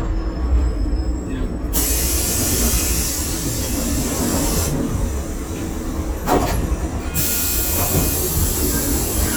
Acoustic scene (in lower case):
bus